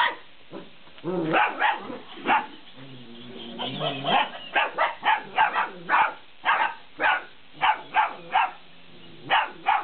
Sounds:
Animal, pets

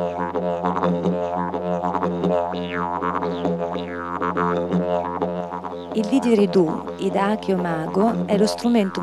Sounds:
Speech, Didgeridoo, Music

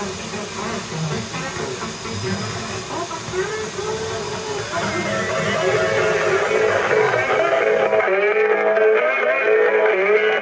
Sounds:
Radio, Music

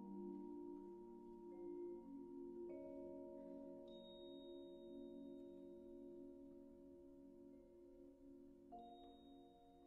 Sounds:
Musical instrument, inside a large room or hall, Marimba, Music, Percussion, Orchestra, Classical music

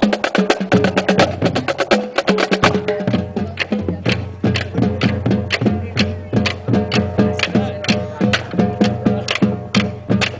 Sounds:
Bass drum, Drum roll, Percussion, Drum, Rimshot, Snare drum

